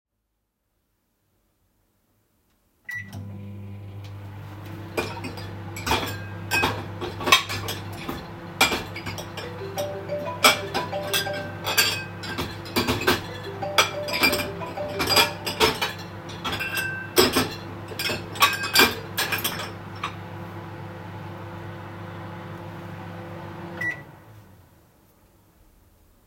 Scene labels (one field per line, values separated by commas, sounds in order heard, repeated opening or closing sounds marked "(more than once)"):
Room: kitchen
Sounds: microwave, cutlery and dishes, phone ringing